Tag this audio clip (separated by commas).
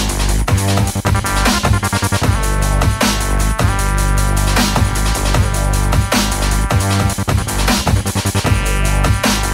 Music